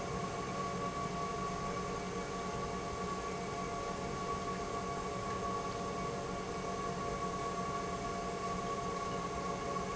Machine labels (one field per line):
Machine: pump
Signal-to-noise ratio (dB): -6 dB